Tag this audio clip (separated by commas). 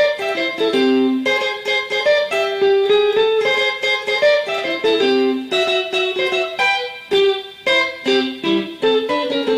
Musical instrument, Guitar, Music, Electric guitar, Plucked string instrument